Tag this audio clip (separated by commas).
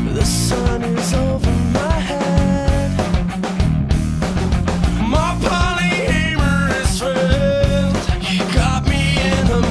Music